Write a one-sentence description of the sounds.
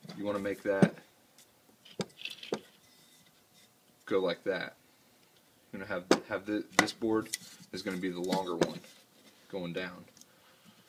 A man talking and wood clanking